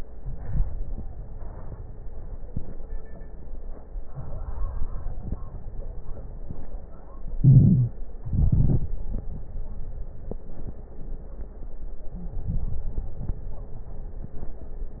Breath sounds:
0.08-1.24 s: inhalation
0.08-1.24 s: crackles
1.26-3.17 s: exhalation
1.26-3.17 s: crackles
4.03-4.77 s: crackles
4.05-4.79 s: inhalation
4.79-6.73 s: exhalation
4.79-6.73 s: crackles
7.24-8.21 s: inhalation
7.40-7.94 s: wheeze
8.20-10.85 s: exhalation
8.20-10.85 s: crackles
12.04-13.20 s: inhalation
12.15-12.61 s: wheeze
13.19-15.00 s: exhalation
13.19-15.00 s: crackles

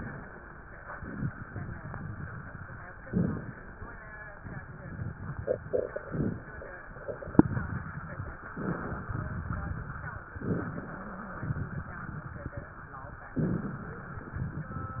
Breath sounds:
0.91-2.88 s: crackles
2.98-3.68 s: inhalation
2.98-3.68 s: crackles
4.29-5.95 s: crackles
6.03-6.49 s: inhalation
6.03-6.49 s: crackles
6.98-8.39 s: crackles
8.56-9.15 s: inhalation
9.18-10.36 s: crackles
10.42-11.01 s: inhalation
10.42-11.01 s: crackles
11.42-12.70 s: crackles
13.43-14.02 s: inhalation
13.43-14.02 s: crackles
14.23-15.00 s: crackles

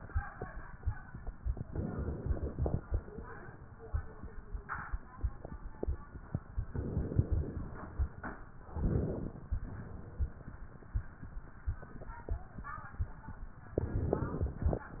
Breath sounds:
1.67-2.77 s: inhalation
1.67-2.77 s: crackles
6.72-7.95 s: inhalation
6.72-7.95 s: crackles
8.80-9.36 s: exhalation
8.80-9.36 s: wheeze
13.78-14.88 s: inhalation
13.78-14.88 s: crackles

